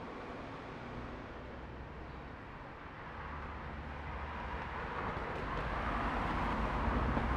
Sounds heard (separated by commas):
car wheels rolling, car engine accelerating, car, bus engine accelerating, bus